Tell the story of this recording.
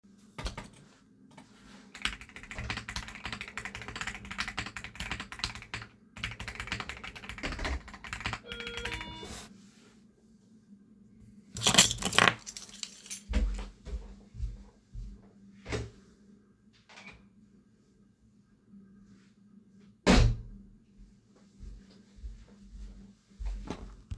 I am working on my pc and someone isringing on the door and i pick my keys up to open the door.